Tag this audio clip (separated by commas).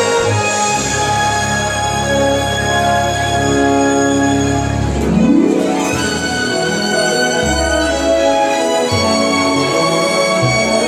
Music, Orchestra